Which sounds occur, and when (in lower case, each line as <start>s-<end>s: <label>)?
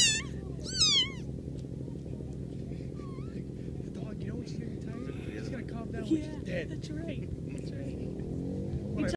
0.0s-0.3s: cat
0.0s-9.1s: mechanisms
0.6s-1.2s: cat
2.9s-3.3s: animal
3.9s-6.4s: man speaking
3.9s-9.1s: conversation
4.8s-5.2s: animal
5.9s-6.3s: woman speaking
6.6s-7.3s: woman speaking
7.5s-8.1s: man speaking
8.9s-9.1s: man speaking
8.9s-9.1s: woman speaking